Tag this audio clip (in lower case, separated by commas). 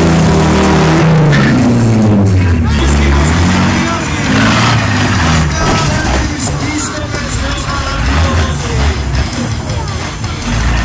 truck, speech, music, vehicle, car